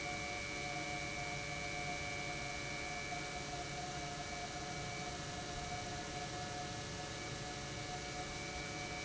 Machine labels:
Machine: pump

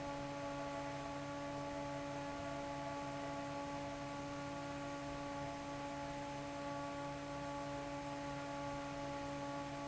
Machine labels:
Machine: fan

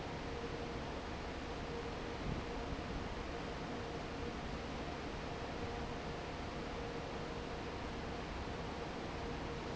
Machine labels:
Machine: fan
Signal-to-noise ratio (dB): 0 dB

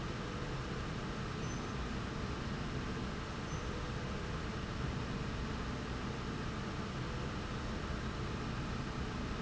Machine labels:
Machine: slide rail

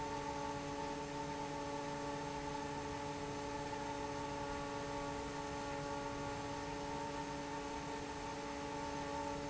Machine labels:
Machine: fan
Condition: normal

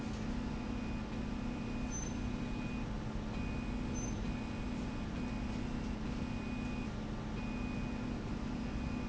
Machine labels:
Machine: slide rail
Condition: normal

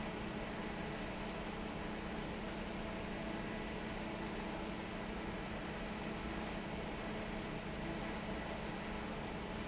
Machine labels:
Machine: fan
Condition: normal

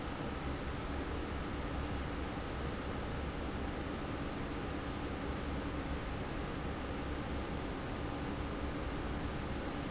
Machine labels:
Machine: fan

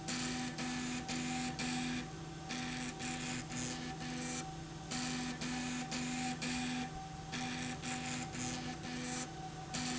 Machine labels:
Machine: slide rail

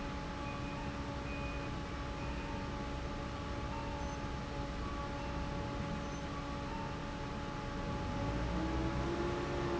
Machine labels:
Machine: fan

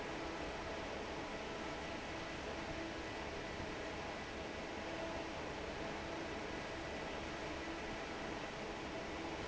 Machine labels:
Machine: fan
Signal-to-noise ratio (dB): 6 dB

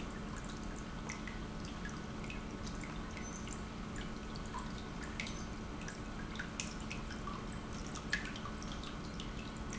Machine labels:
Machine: pump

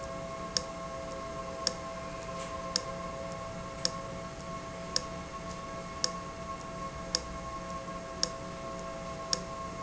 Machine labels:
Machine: valve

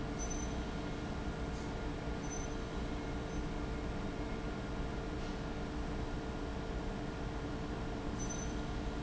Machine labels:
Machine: fan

